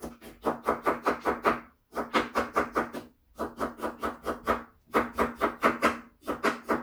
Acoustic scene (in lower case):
kitchen